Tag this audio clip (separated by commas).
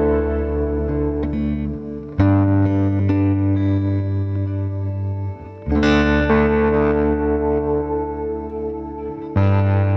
Motor vehicle (road), Car passing by, Car, Music, Vehicle